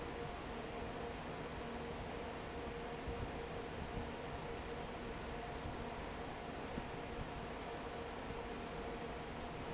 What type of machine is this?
fan